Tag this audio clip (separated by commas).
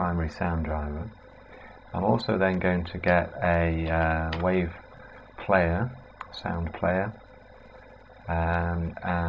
Speech